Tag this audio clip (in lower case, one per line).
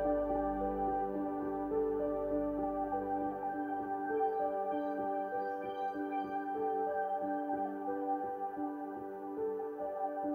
music
new-age music